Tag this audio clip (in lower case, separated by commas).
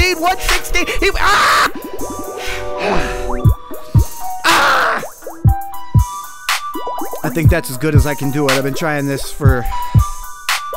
rapping